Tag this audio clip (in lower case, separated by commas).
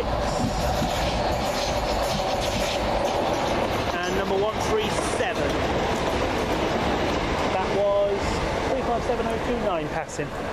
clickety-clack, underground, rail transport, train, railroad car